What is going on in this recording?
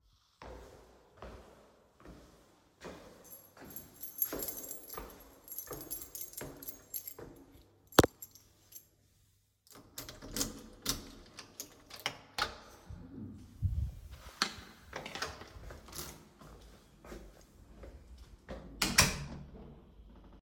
I walked toward the door while holding keys and opened it.